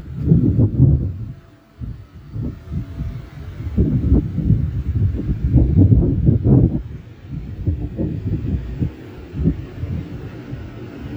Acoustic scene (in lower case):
residential area